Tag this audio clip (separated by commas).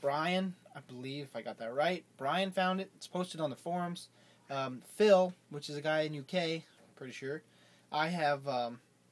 Speech